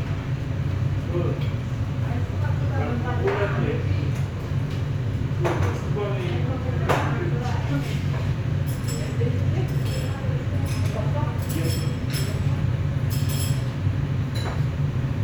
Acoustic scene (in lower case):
restaurant